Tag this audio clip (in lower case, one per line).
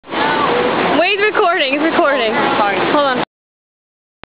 speech